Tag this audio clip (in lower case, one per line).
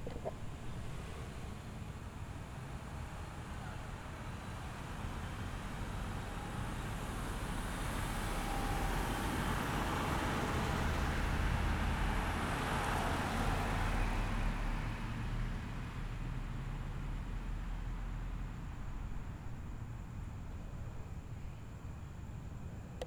car
vehicle
engine
car passing by
motor vehicle (road)